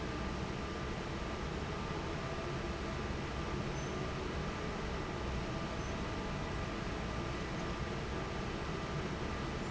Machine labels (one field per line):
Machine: fan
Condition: normal